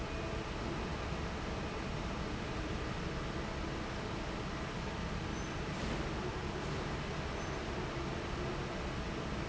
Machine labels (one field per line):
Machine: fan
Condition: normal